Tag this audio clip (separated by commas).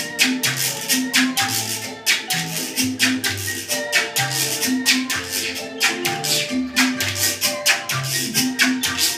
playing guiro